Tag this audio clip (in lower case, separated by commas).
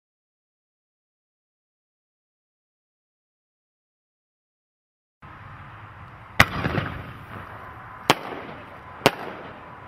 fireworks, firecracker, silence, outside, urban or man-made